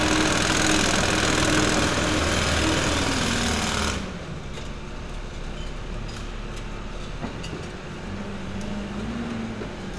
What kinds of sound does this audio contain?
jackhammer